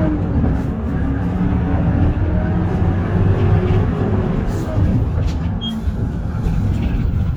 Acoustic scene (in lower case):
bus